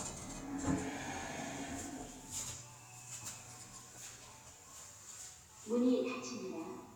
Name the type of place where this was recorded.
elevator